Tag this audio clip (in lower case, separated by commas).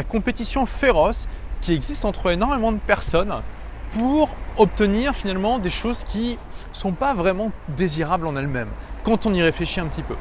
speech